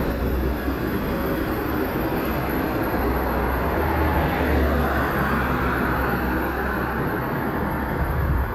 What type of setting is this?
street